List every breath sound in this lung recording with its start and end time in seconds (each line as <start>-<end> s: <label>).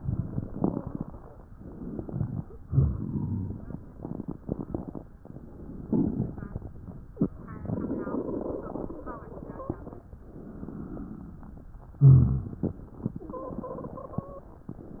0.00-1.10 s: crackles
1.50-2.43 s: inhalation
2.67-3.80 s: exhalation
2.67-3.80 s: rhonchi
5.86-6.79 s: inhalation
10.38-11.67 s: inhalation
12.01-12.68 s: exhalation
12.01-12.68 s: rhonchi
13.30-14.57 s: wheeze